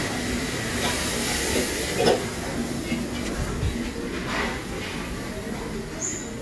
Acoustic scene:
restaurant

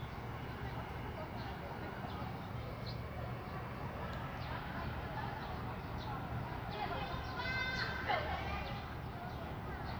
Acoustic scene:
residential area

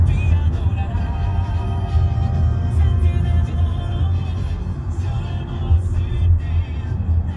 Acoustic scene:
car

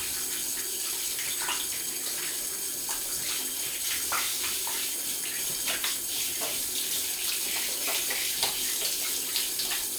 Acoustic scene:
restroom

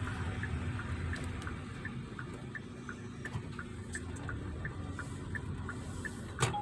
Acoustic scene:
car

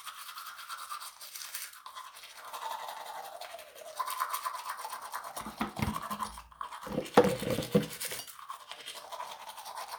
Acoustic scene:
restroom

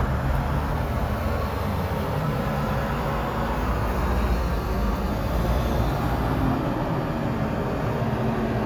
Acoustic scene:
street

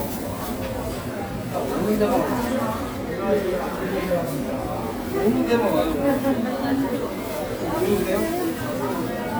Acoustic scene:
crowded indoor space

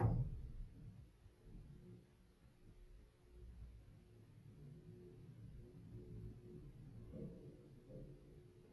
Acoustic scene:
elevator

